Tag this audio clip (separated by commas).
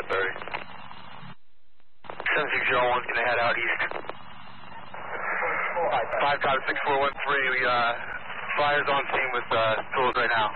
police radio chatter